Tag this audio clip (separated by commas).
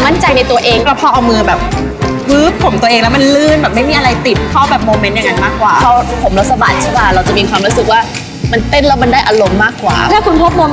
Music, Speech